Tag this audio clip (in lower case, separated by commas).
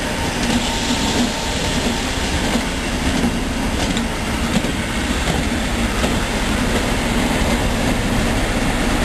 clickety-clack, train, railroad car, rail transport